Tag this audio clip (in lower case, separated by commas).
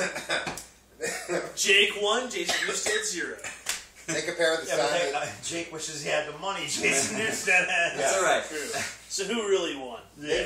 speech